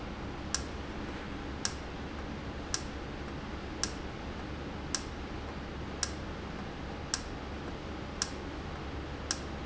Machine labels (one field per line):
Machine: valve